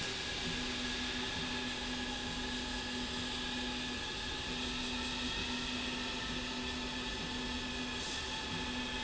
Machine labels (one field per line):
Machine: slide rail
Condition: normal